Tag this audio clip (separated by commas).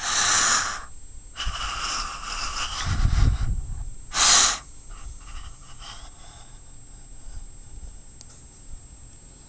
inside a small room